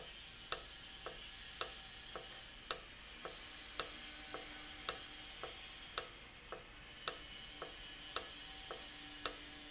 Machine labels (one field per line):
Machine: valve